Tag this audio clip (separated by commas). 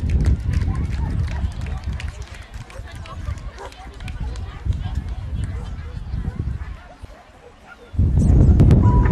Bow-wow, Speech, Animal, Dog